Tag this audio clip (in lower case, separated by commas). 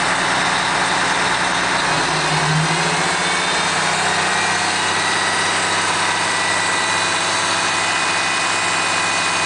vehicle, engine, bus